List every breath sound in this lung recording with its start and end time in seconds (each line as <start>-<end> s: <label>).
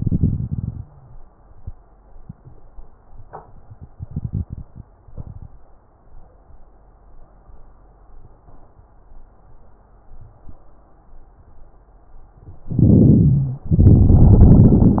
0.00-0.78 s: exhalation
0.81-1.15 s: wheeze
3.97-4.83 s: inhalation
5.15-5.57 s: exhalation
12.68-13.68 s: inhalation
13.72-15.00 s: exhalation